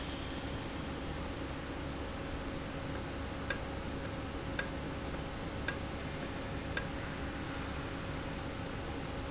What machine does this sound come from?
valve